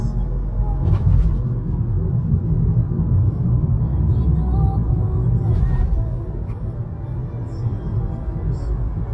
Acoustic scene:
car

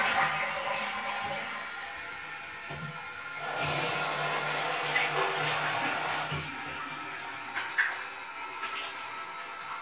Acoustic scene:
restroom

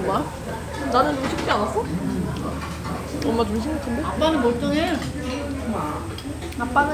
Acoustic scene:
restaurant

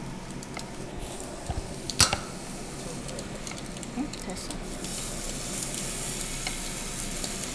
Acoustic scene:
restaurant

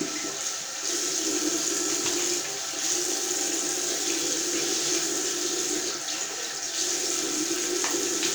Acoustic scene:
restroom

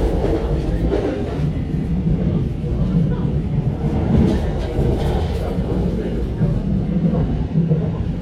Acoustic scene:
subway train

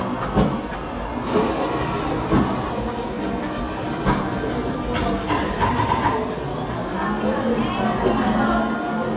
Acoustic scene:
cafe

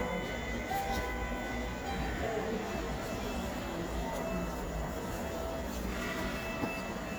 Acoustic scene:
subway station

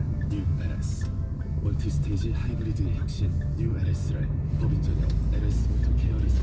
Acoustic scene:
car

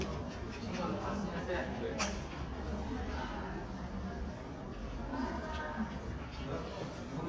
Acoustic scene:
crowded indoor space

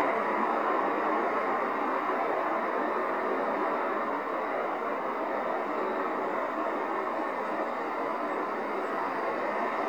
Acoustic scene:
street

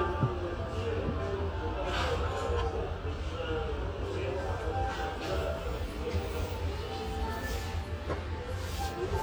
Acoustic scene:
restaurant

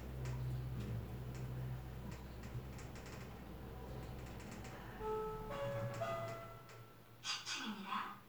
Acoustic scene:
elevator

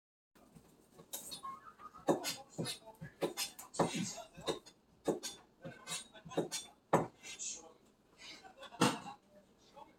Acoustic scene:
kitchen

